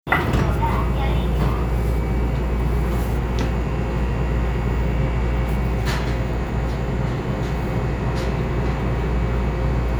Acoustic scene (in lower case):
subway train